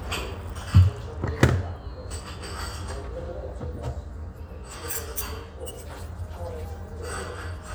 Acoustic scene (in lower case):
restaurant